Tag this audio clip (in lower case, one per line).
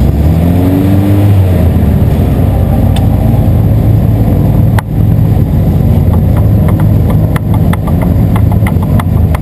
vehicle
car passing by